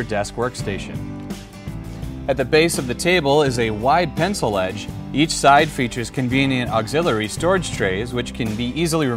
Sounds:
music, speech

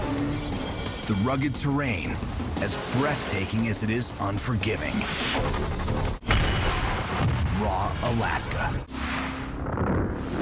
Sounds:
speech, music

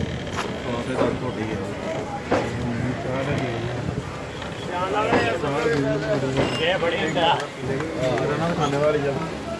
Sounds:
train, vehicle, speech, rail transport

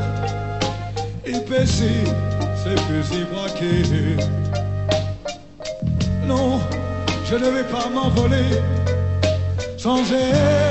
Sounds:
music

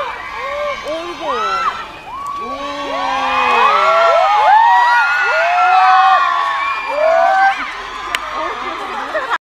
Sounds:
speech

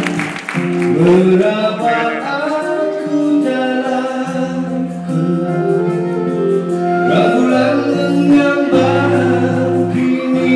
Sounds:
music

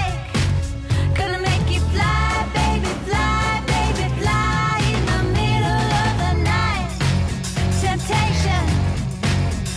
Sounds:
music

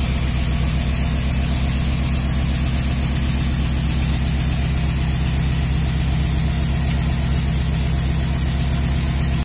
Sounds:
engine, idling, vehicle, medium engine (mid frequency)

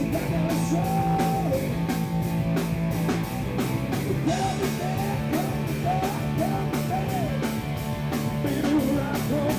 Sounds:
roll, rock and roll, music

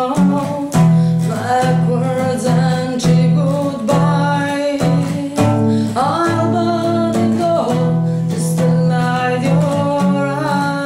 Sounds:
music

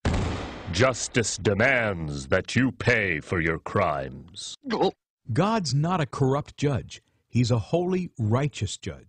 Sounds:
speech

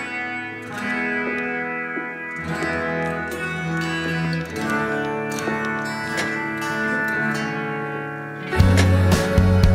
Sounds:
music

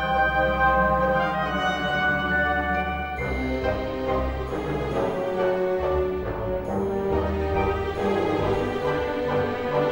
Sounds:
music

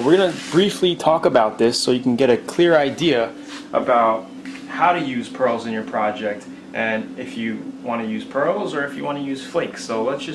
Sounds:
speech

